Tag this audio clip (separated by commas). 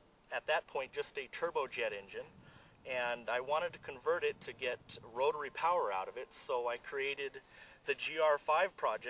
Speech